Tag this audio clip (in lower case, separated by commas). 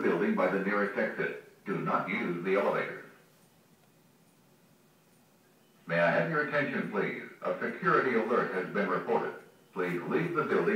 speech